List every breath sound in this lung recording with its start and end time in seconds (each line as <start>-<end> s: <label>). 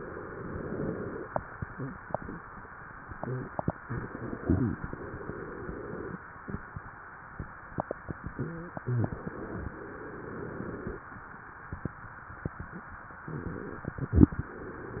0.00-1.29 s: inhalation
3.75-4.86 s: crackles
3.77-4.90 s: exhalation
4.93-6.21 s: inhalation
8.56-9.67 s: crackles
8.58-9.71 s: exhalation
9.75-11.04 s: inhalation
13.24-14.35 s: crackles
13.24-14.37 s: exhalation
14.39-15.00 s: inhalation